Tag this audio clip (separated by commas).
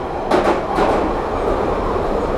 Vehicle, underground, Rail transport